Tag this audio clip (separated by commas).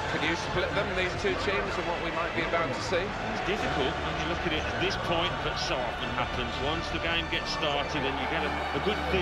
Music, Speech